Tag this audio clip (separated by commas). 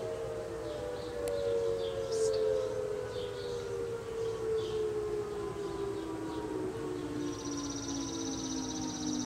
Civil defense siren, Siren